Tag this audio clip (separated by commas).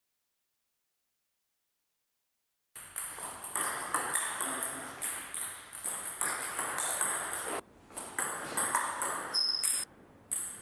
playing table tennis